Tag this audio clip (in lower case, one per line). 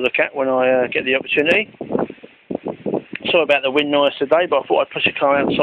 speech